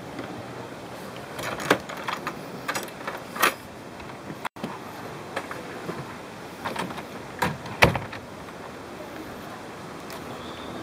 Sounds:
outside, rural or natural, Speech

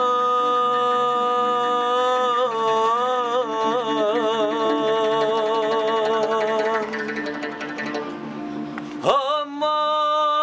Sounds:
Music

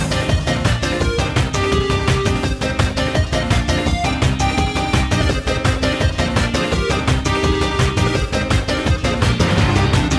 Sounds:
Music

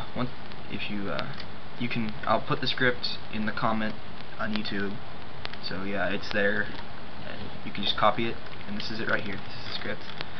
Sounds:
Speech

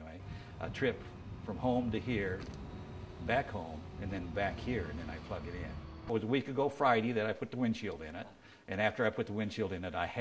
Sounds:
Speech, Car passing by

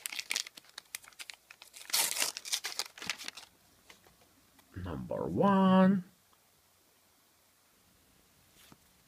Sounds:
inside a small room, Speech

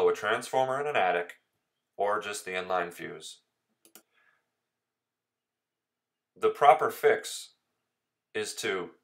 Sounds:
Speech

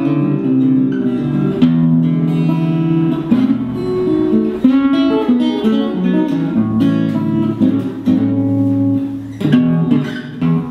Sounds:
Guitar, Plucked string instrument, Musical instrument, Acoustic guitar, Strum, Music

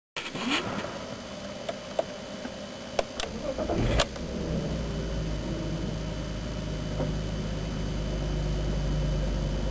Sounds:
Vehicle

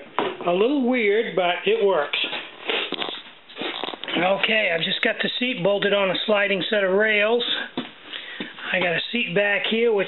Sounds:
inside a small room, Speech

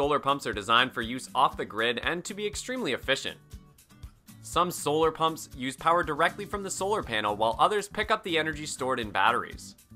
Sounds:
pumping water

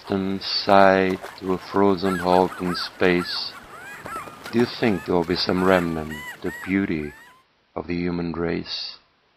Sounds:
Speech

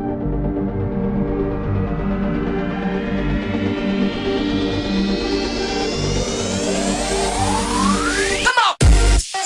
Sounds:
Electronic dance music

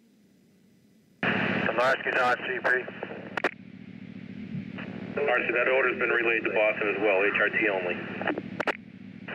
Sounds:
police radio chatter

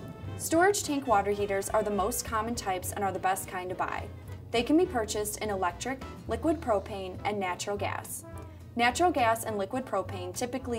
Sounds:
Music, Speech

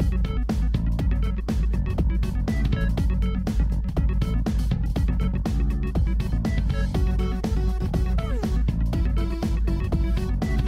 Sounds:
Music, Techno, Electronic music

